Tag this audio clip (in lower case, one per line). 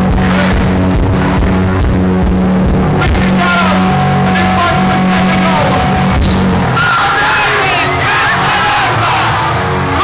speech
music